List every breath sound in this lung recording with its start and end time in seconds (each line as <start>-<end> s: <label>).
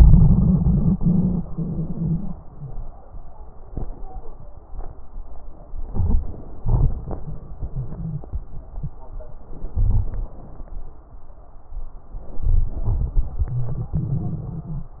5.84-6.54 s: inhalation
5.84-6.54 s: crackles
6.57-8.25 s: exhalation
6.57-8.25 s: crackles
9.72-10.60 s: inhalation
9.72-10.60 s: crackles
12.43-13.39 s: inhalation
12.43-13.39 s: crackles
13.44-14.95 s: exhalation
13.44-14.95 s: crackles